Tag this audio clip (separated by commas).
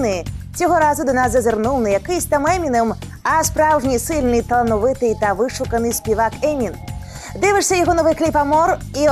Music, Speech